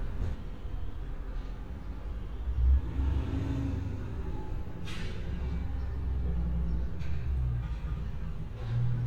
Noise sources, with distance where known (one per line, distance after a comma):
medium-sounding engine